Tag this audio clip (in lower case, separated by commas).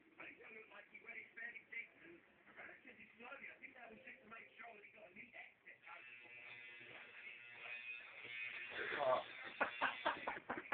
electric razor, speech